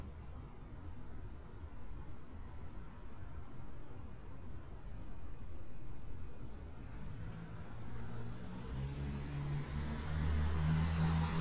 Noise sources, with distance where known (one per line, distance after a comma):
medium-sounding engine, near